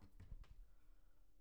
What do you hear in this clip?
wooden cupboard opening